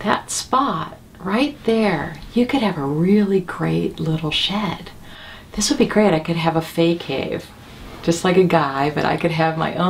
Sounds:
speech

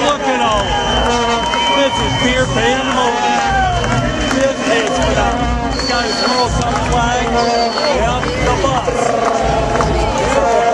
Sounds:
speech, music, outside, urban or man-made

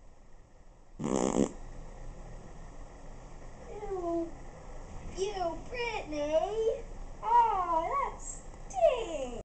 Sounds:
domestic animals, speech

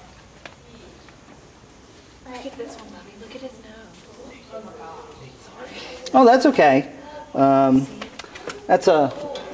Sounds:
speech

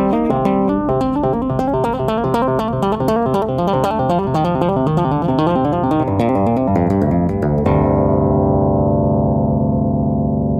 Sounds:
tapping guitar

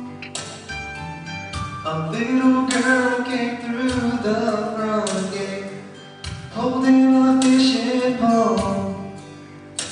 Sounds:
music, male singing

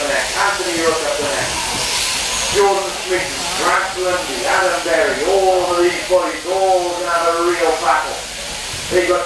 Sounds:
speech

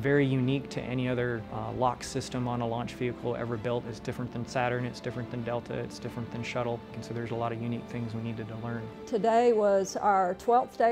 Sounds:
speech, music

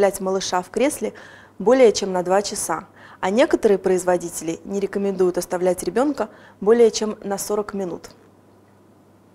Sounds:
speech

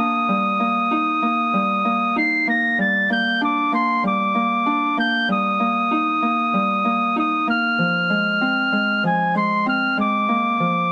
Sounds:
music

